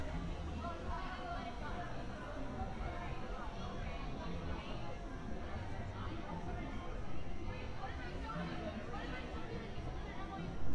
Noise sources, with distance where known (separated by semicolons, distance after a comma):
person or small group talking